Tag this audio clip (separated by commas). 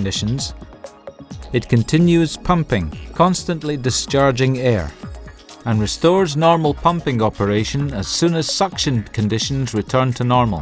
Speech, Music